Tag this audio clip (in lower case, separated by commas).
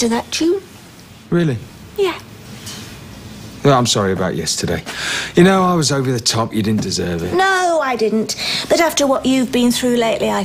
speech